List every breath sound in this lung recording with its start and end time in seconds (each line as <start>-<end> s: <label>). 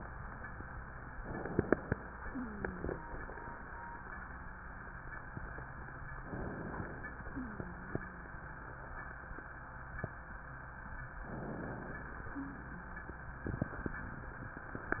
1.23-2.24 s: inhalation
2.26-3.27 s: wheeze
6.26-7.27 s: inhalation
7.30-8.31 s: wheeze
11.33-12.33 s: inhalation
12.37-12.71 s: wheeze